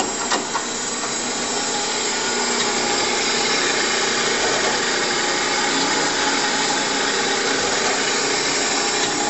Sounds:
inside a large room or hall

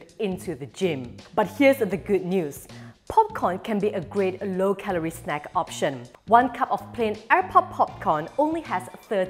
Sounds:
popping popcorn

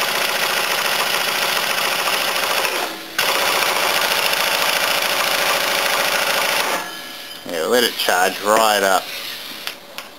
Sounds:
Speech

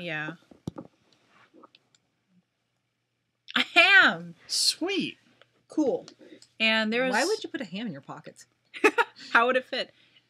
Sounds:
Speech

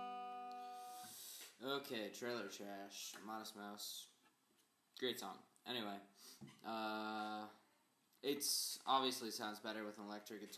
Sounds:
Speech, Music

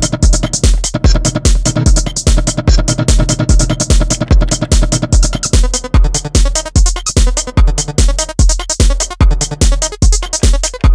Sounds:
Synthesizer, Music, Drum machine

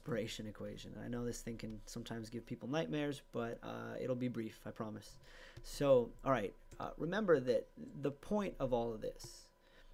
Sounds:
Speech

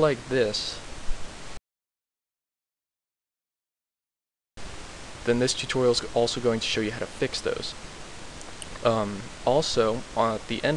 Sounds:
Speech

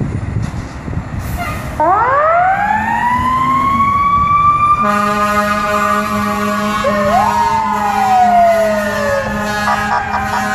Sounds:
Vehicle, Engine, Truck, revving

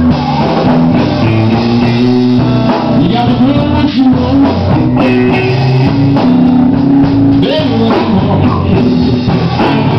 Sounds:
Rock music, Plucked string instrument, Guitar, Blues, Musical instrument, Music, Speech

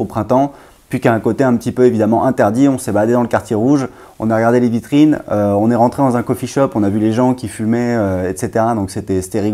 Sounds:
Speech

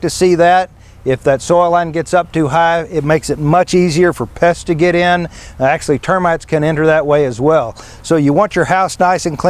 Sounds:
Speech

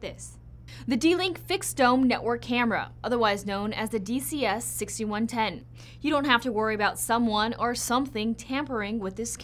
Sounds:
Speech

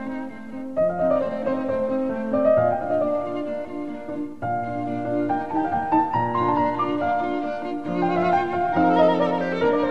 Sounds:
Musical instrument, Cello, Classical music, Music, Piano, fiddle, Keyboard (musical)

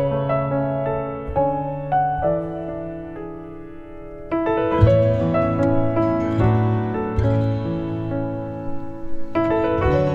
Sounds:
Music

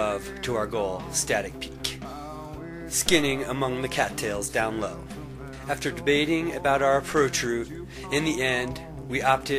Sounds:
Speech, Music

